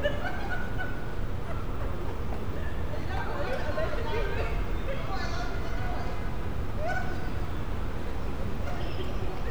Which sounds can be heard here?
person or small group talking